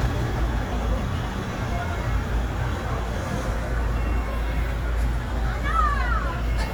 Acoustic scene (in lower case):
residential area